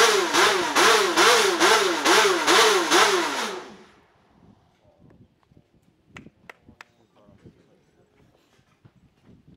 A vehicle engine revs then something clicks